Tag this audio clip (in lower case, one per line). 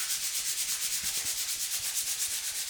tools